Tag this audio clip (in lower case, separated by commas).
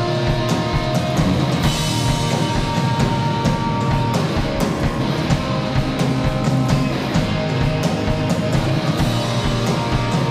music